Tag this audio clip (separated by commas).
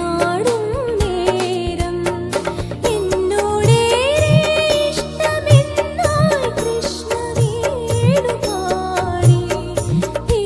Music, Dance music